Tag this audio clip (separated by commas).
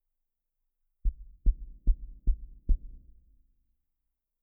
Door, Knock, Domestic sounds